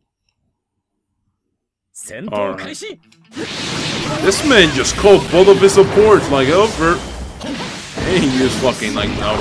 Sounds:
Speech

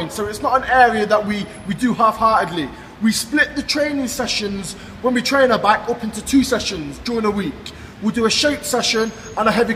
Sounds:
Speech

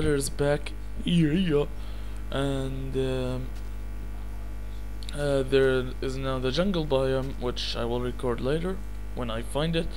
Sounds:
Speech

